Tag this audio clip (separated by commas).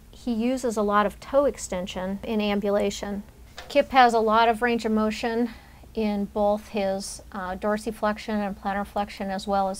Speech